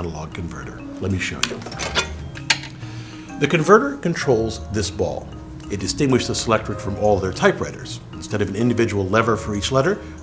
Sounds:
Speech, Music

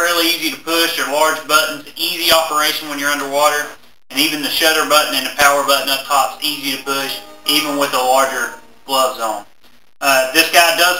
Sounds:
Speech

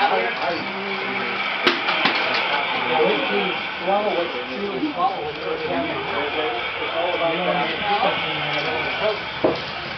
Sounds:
Speech, Vehicle

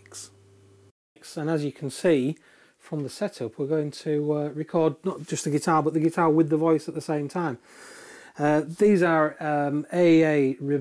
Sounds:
Speech

